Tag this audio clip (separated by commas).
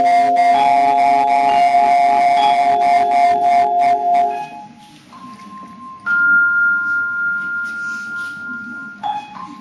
playing vibraphone